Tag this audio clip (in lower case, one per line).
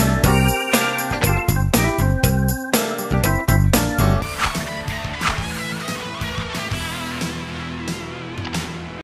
music